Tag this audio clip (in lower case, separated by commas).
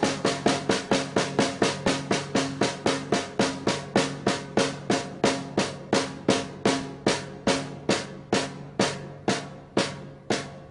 playing snare drum